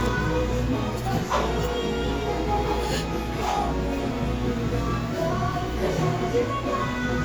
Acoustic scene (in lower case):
cafe